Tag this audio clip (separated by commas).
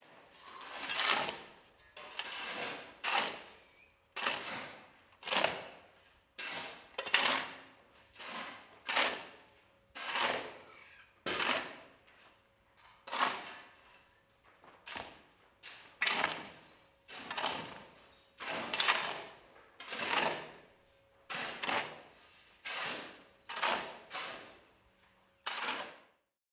Tools